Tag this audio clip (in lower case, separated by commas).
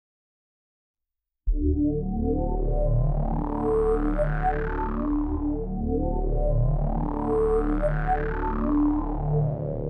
music